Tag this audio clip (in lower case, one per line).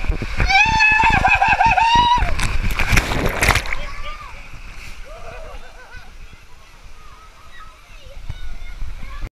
speech
gurgling